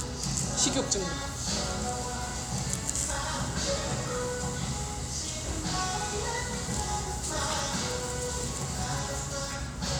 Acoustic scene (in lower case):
restaurant